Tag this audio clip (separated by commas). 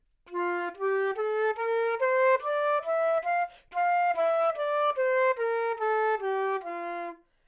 Musical instrument, woodwind instrument, Music